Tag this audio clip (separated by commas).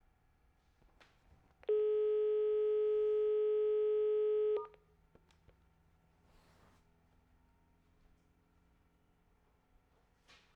Alarm, Telephone